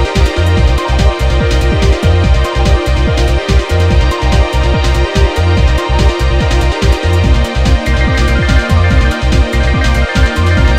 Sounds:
Video game music, Music

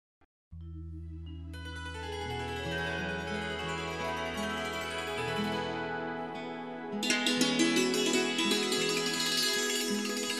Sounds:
Music

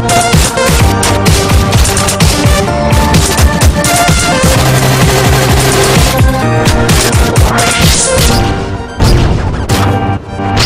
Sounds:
Dubstep, Music

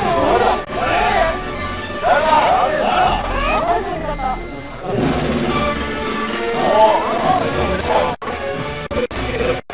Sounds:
Music, Speech

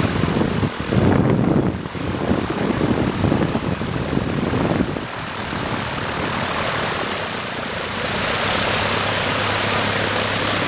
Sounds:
Vehicle, airplane, Wind

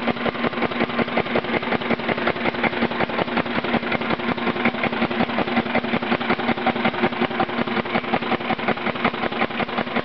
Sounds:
Engine, Medium engine (mid frequency), Idling

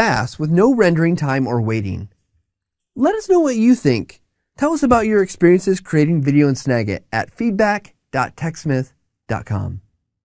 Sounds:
Speech

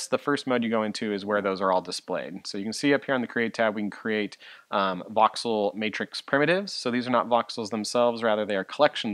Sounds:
Speech

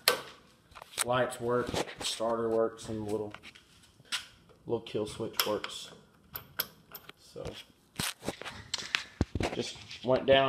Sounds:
Speech

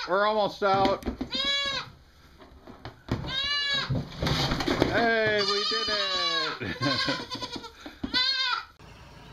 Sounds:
goat bleating

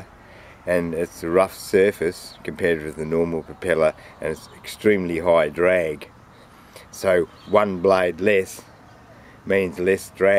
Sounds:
Speech

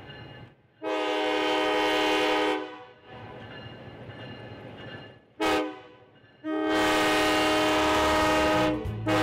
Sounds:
Railroad car, Train horn, Train

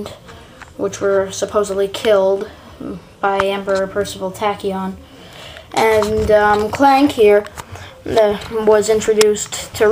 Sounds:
Speech

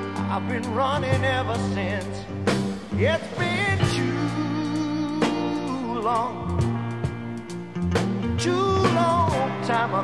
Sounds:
Music

